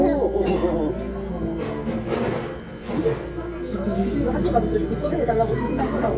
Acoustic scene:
crowded indoor space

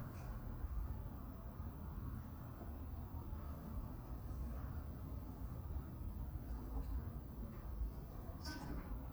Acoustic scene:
residential area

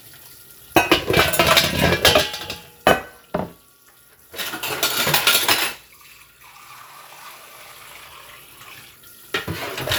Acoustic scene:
kitchen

